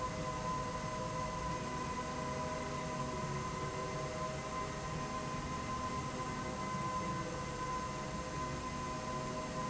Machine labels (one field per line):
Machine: slide rail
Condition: normal